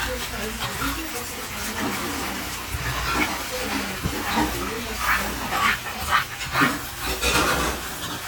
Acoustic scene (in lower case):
restaurant